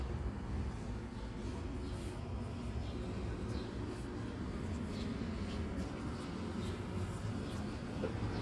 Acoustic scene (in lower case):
residential area